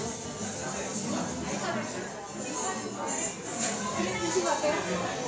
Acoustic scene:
cafe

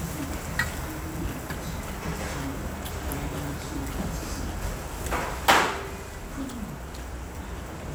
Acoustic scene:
restaurant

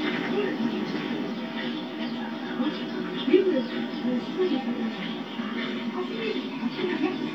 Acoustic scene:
park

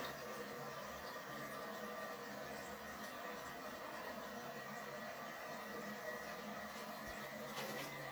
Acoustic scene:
restroom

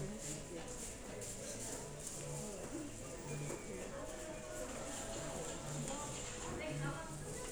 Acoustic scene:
crowded indoor space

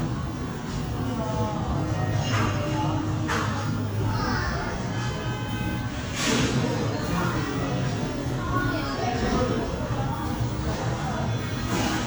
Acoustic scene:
cafe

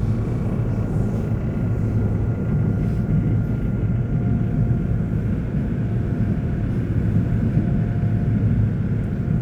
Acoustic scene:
subway train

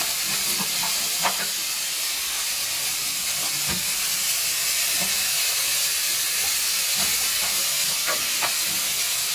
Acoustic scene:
kitchen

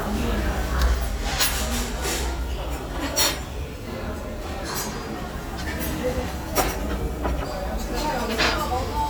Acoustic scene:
restaurant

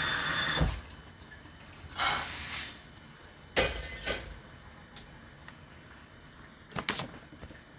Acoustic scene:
kitchen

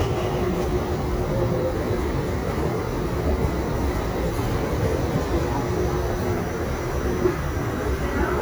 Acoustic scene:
crowded indoor space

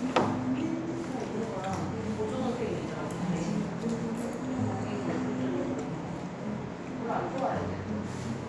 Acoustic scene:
restaurant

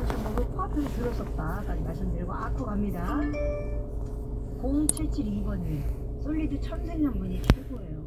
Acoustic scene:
car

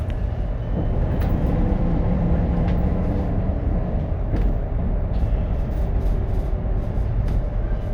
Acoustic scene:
bus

